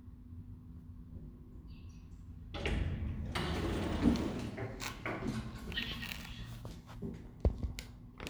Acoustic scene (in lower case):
elevator